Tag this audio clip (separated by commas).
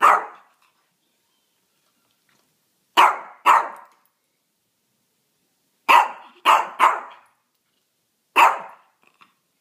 pets, Animal, Bark, Dog, dog barking